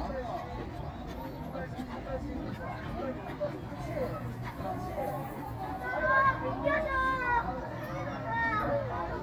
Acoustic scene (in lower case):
park